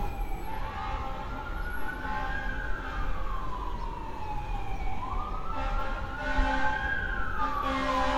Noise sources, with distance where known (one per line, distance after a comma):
car horn
siren